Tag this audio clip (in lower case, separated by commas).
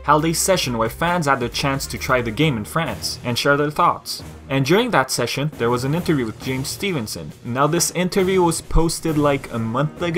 speech, music